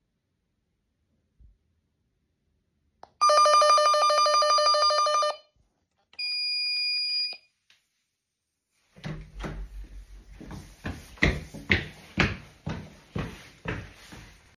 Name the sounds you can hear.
bell ringing, door, footsteps